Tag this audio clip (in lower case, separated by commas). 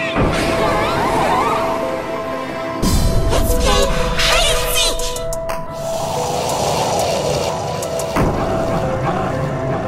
music